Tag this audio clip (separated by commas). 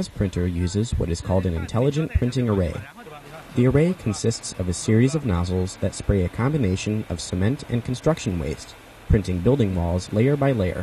Speech